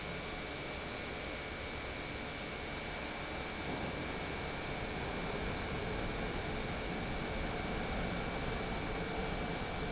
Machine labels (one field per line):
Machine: pump